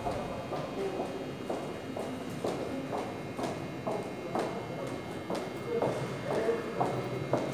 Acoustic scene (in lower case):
subway station